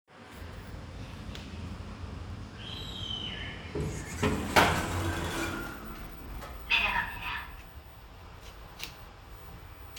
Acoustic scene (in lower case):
elevator